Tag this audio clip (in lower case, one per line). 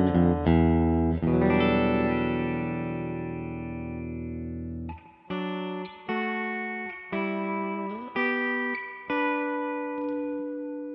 electric guitar
guitar
playing electric guitar
music
musical instrument
plucked string instrument